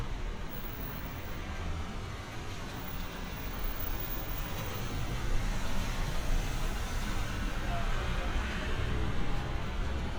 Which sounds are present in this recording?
engine of unclear size